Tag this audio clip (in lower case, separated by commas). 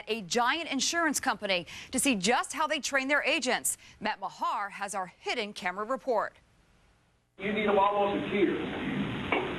speech